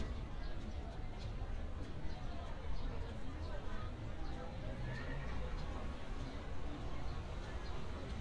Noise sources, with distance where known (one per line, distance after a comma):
person or small group talking